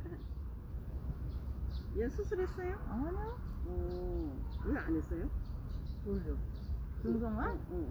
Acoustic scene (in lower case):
park